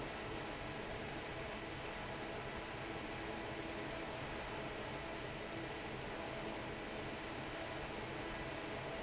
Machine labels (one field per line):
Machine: fan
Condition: normal